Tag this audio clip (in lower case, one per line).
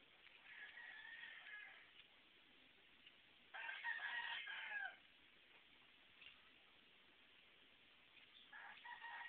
domestic animals